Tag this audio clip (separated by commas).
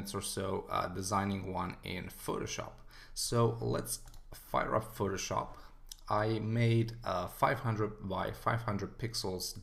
Speech